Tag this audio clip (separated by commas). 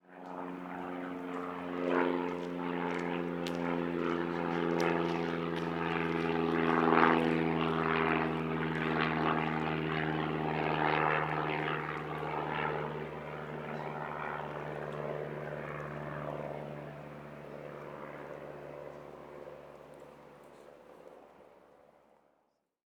Vehicle, Aircraft